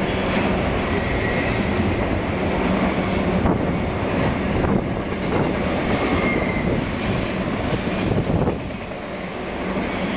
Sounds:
vehicle, train, rail transport, outside, rural or natural

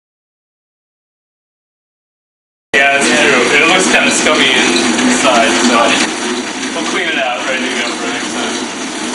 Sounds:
bicycle

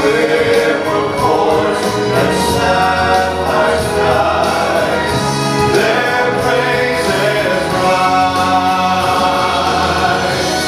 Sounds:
music, choir, singing, vocal music

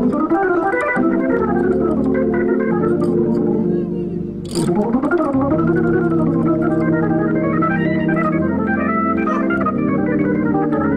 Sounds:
organ, hammond organ

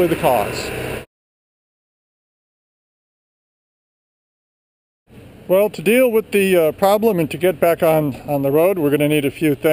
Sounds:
outside, urban or man-made, speech

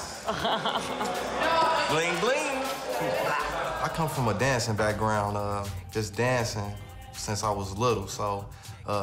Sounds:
speech, music

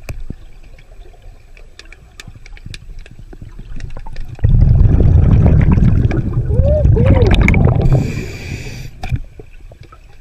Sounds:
scuba diving

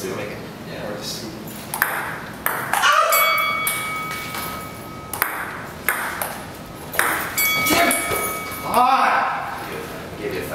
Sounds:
ping, speech

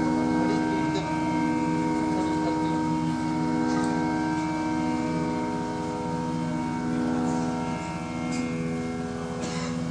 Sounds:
music, speech

